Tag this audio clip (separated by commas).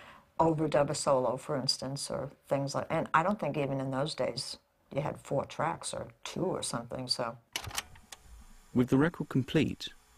Speech, inside a small room